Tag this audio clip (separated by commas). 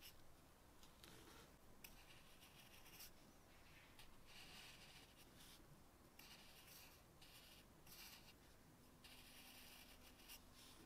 writing on blackboard with chalk